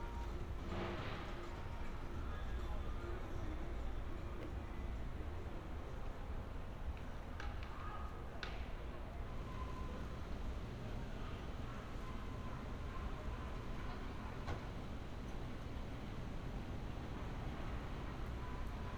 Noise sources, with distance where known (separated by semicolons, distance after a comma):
background noise